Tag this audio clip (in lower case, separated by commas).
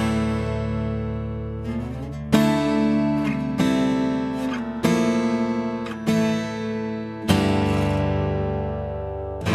music